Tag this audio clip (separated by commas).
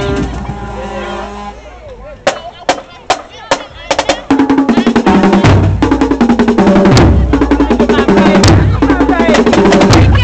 Music, Drum roll, Speech